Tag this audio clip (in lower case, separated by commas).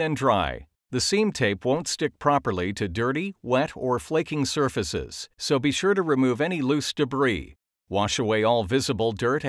speech